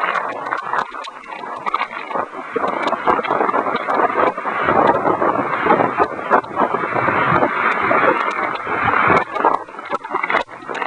Thunder claps in the distance, wind blows